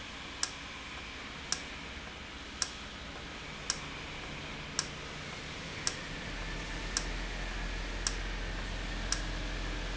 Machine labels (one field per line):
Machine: valve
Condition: normal